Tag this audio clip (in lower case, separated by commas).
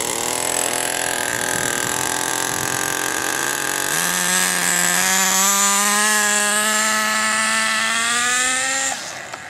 vehicle, motor vehicle (road)